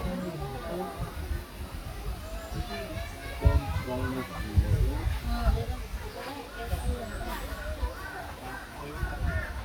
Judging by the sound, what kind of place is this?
park